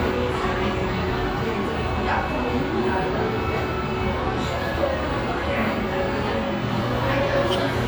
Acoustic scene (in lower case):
restaurant